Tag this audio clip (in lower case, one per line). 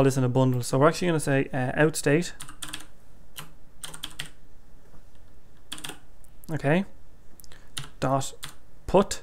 computer keyboard
speech
typing